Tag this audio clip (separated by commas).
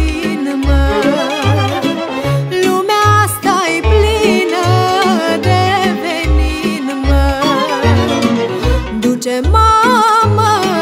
Soul music, Music